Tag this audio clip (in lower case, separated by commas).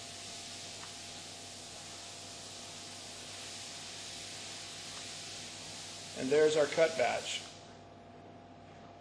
speech